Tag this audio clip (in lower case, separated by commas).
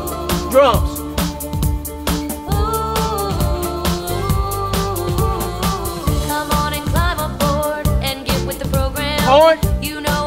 music, guitar, plucked string instrument, speech, musical instrument, strum